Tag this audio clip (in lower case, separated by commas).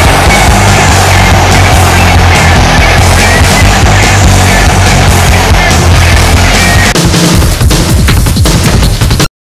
music